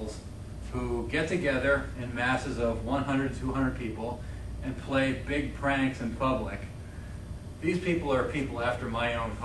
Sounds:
male speech, narration, speech

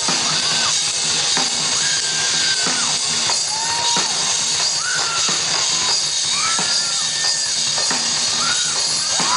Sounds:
gasp, music

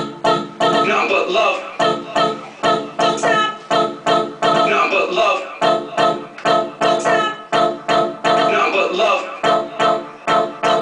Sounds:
music

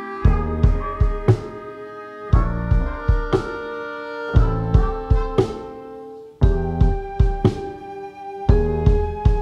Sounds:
music

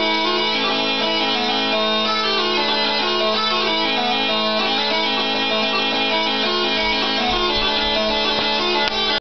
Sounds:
music, bagpipes

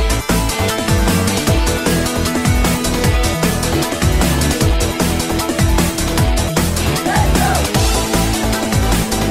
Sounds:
music

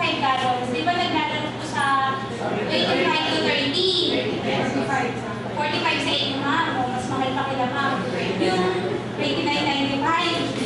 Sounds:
speech

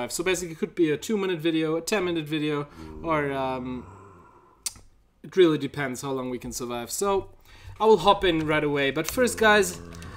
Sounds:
inside a small room, speech

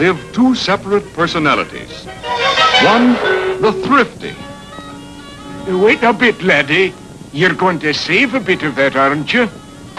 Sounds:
speech, music

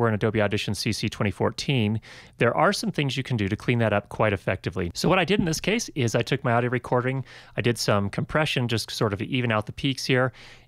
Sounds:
speech

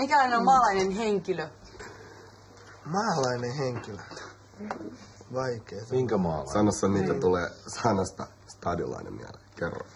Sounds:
speech

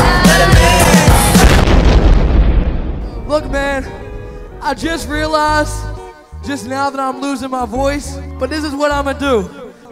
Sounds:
hip hop music, singing, speech, music

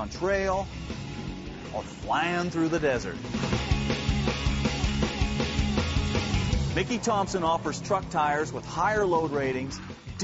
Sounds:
music, speech, truck

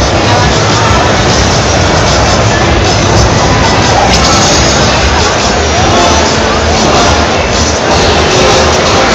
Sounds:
music

